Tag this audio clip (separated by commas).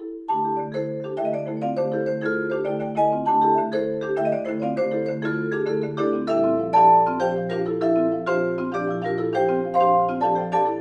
playing vibraphone